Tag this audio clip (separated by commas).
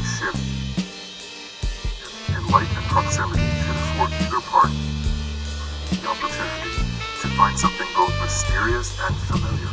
Speech, Music